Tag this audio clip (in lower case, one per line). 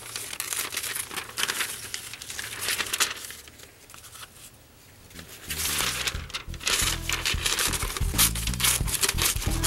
inside a small room
music